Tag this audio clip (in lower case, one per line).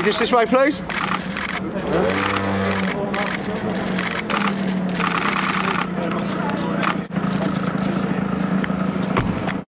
speech